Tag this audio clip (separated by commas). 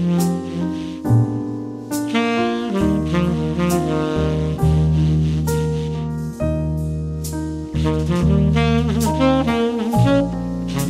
playing saxophone